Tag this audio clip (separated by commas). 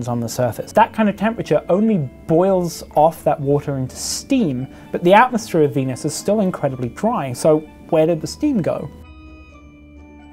Music, Speech